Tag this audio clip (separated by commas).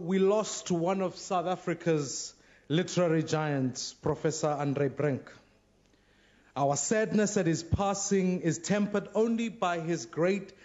Speech, Narration, Male speech